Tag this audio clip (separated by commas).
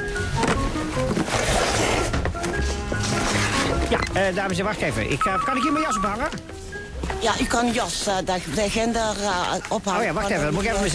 Music, Speech